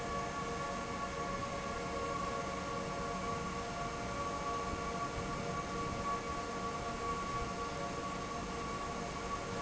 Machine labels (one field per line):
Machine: fan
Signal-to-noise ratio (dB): -6 dB